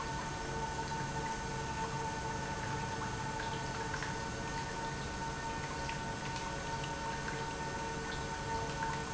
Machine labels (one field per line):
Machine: pump